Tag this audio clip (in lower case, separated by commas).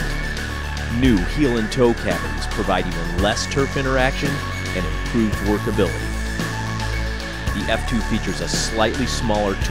music, speech